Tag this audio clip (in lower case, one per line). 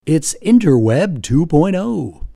human voice